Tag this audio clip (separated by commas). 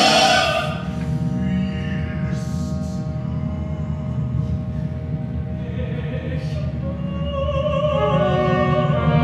Music